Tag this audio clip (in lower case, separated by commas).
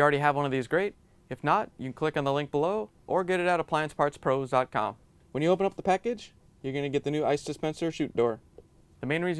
speech